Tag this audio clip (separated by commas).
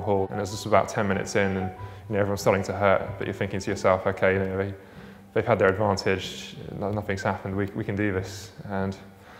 Speech, Music